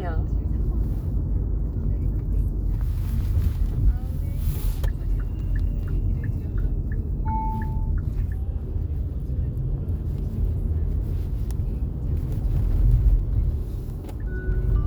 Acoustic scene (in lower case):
car